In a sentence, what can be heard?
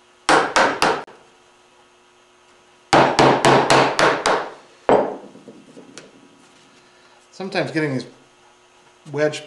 An object is being tapped on and a man speaks